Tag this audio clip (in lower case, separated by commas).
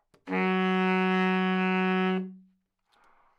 music, wind instrument, musical instrument